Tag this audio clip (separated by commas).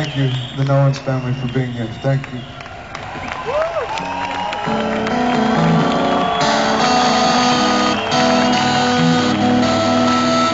Speech, man speaking, Music, Narration